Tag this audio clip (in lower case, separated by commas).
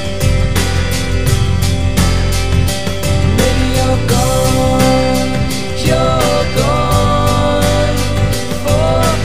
music